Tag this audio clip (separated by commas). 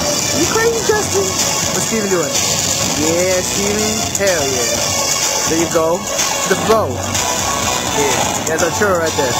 Speech, Music